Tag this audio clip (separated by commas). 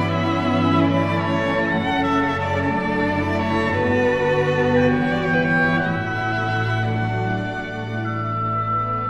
playing oboe